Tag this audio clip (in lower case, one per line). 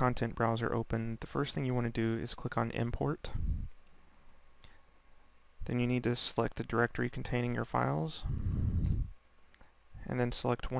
speech